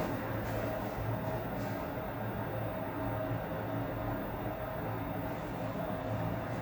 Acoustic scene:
elevator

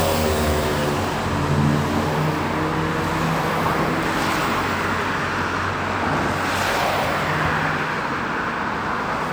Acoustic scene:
street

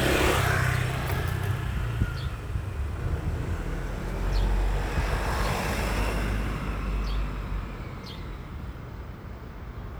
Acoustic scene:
residential area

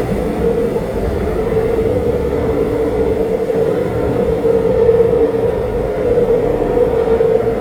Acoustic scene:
subway train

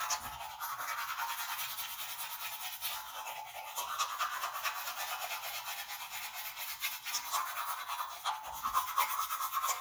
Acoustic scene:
restroom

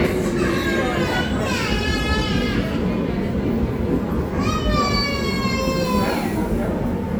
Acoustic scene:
subway station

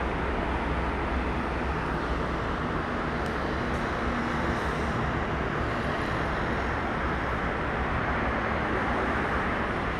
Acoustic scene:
street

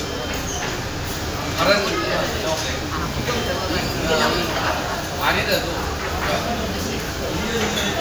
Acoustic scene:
crowded indoor space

